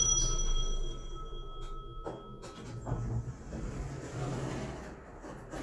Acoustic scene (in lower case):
elevator